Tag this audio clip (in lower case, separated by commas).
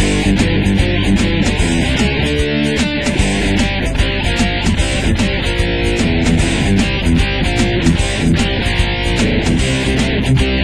heavy metal, rock and roll, music, punk rock